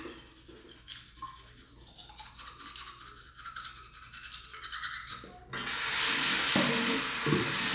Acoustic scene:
restroom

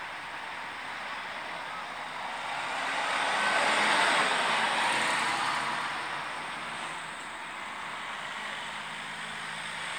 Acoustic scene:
street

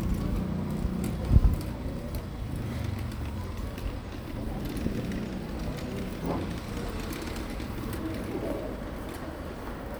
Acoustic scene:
residential area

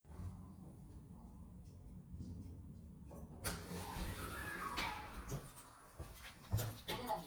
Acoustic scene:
elevator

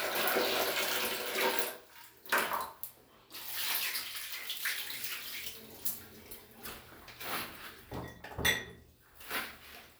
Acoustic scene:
restroom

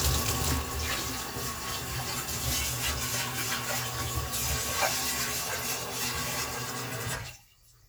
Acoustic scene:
kitchen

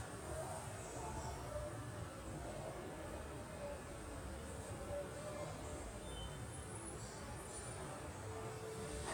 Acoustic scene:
subway station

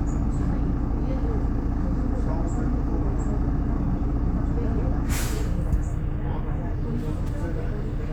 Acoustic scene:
bus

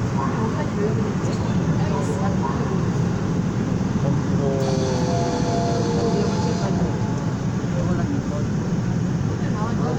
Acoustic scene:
subway train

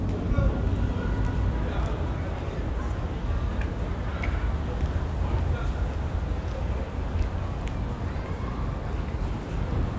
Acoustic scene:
residential area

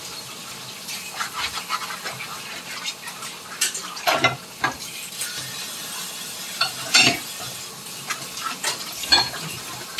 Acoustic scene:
kitchen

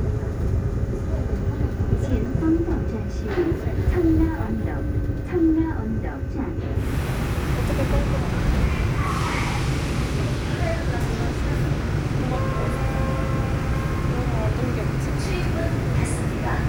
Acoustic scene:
subway train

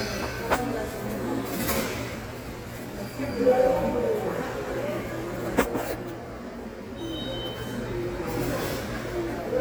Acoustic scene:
subway station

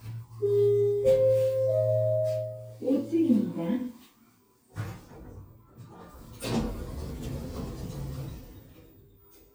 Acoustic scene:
elevator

